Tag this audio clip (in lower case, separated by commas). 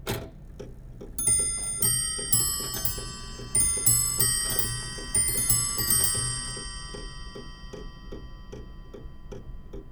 clock, mechanisms